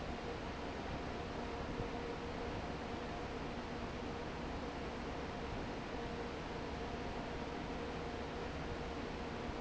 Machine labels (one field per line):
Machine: fan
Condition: normal